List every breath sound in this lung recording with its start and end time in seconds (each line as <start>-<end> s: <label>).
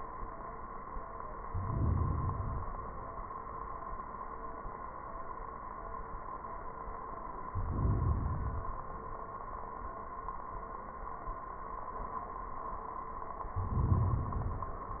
1.45-2.80 s: inhalation
7.50-8.85 s: inhalation
13.53-14.99 s: inhalation